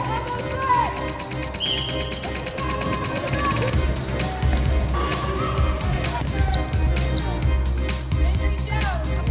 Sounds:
crowd

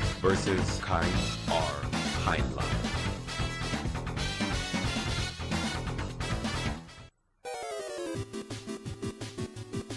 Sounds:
speech, music

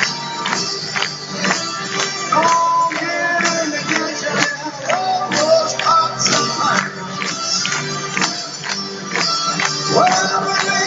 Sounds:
music

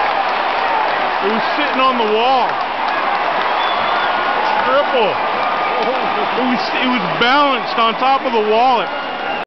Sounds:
speech

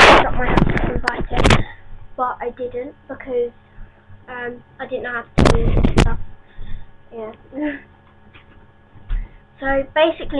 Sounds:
speech

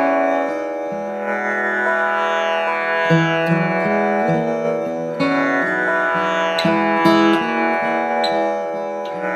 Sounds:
musical instrument, plucked string instrument, carnatic music, guitar, music, acoustic guitar

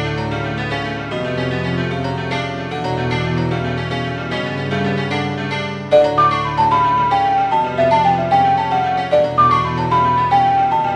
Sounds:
music

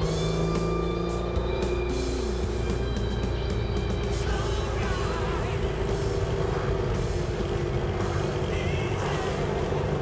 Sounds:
music, engine, vehicle

